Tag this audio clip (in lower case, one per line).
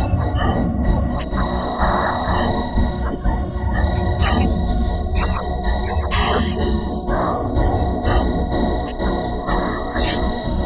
music
techno
electronic music